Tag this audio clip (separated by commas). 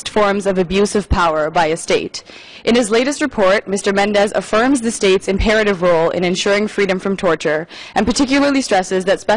Speech, Narration, woman speaking